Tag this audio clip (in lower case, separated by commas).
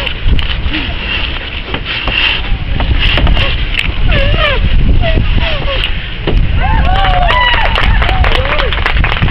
vehicle, speech